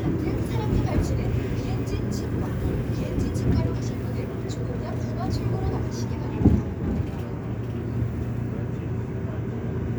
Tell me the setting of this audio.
subway train